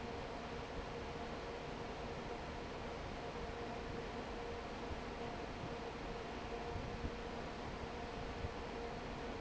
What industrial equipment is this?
fan